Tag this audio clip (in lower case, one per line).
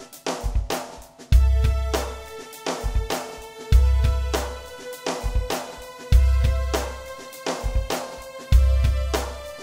music